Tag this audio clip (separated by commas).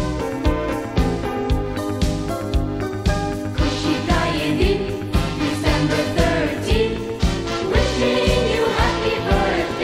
Music